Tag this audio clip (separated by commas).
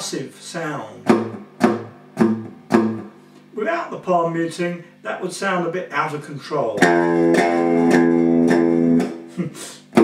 Bass guitar, Guitar, Plucked string instrument, Musical instrument, Music